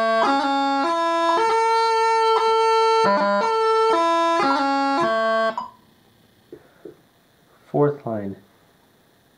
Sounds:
woodwind instrument

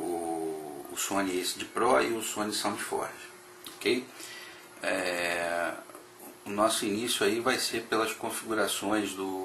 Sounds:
speech

